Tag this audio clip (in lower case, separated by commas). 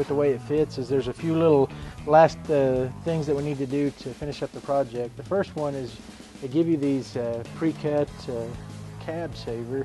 speech, music